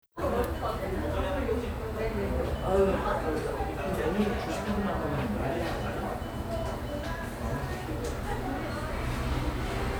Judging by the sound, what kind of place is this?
cafe